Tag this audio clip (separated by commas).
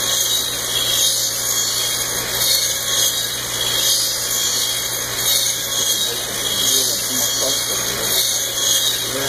Speech